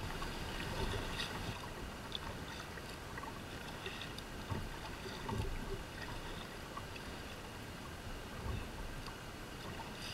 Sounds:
kayak, vehicle

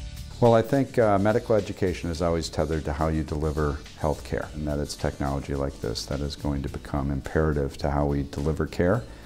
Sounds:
music, speech

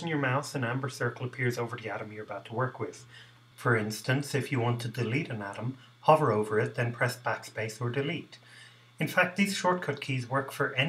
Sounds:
speech

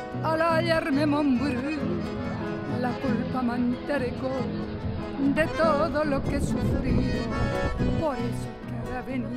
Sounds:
music

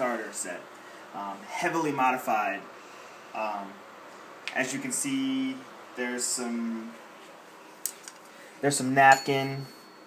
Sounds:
chime

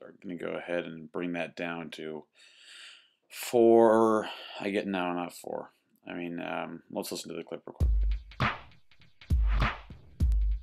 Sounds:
music, speech

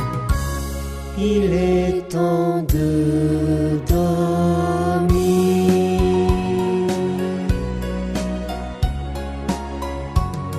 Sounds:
singing, music

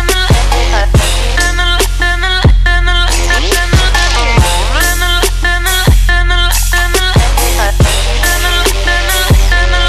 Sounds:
music

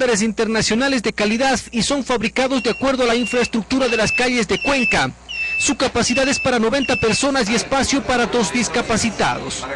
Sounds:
speech

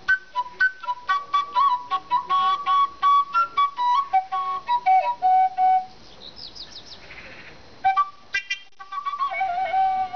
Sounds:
flute, music, musical instrument

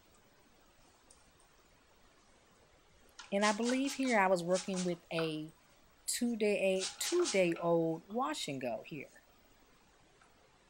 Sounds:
speech

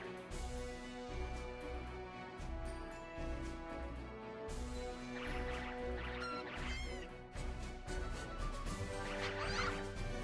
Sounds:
music

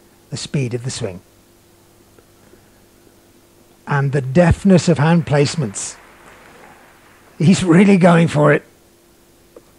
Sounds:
speech

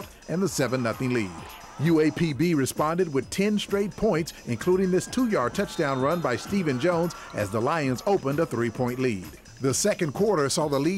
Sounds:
music, speech

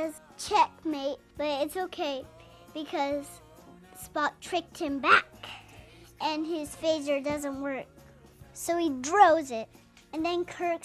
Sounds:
speech, music, inside a small room, kid speaking

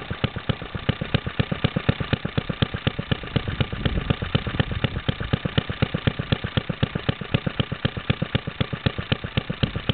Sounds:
engine, medium engine (mid frequency), idling

